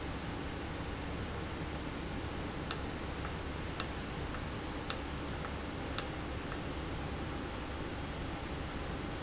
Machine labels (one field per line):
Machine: valve